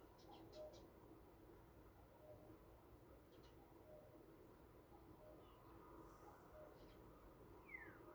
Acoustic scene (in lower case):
park